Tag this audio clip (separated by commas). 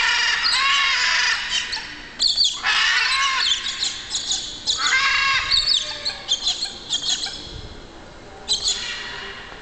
Squawk, inside a large room or hall